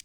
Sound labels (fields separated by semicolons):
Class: switch; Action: being turned off; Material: plastic